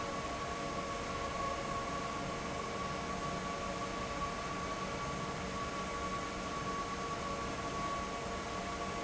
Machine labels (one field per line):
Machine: fan